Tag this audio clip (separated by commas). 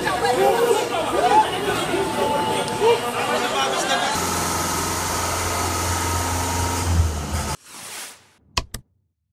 Speech